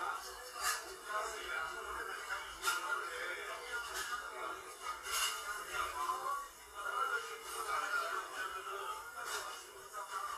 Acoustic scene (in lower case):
crowded indoor space